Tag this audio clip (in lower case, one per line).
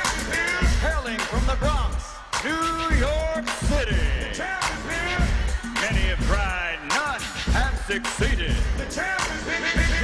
speech
music